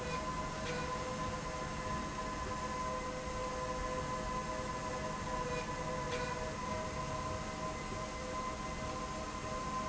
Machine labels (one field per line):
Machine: slide rail